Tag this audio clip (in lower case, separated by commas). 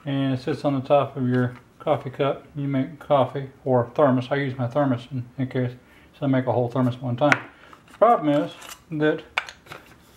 speech